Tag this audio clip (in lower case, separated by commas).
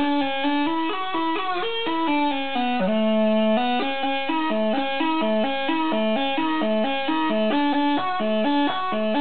bagpipes